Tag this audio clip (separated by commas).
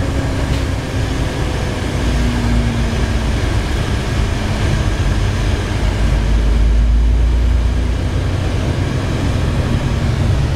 Vehicle, Truck